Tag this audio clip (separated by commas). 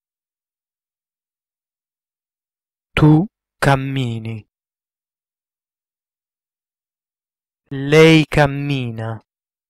Speech